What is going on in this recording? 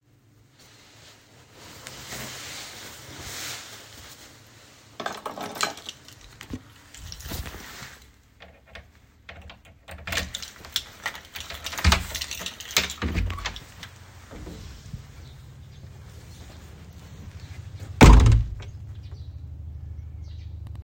I put on my clothes, got my keychain, unlocked the door and opened it. I went outside hearing a helicopter and birds chirping.